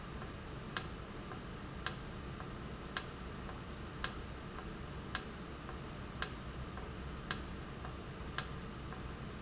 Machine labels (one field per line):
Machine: valve